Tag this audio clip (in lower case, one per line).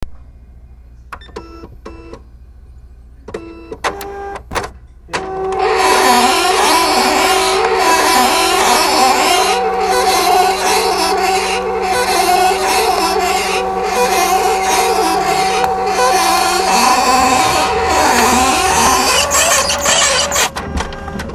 printer
mechanisms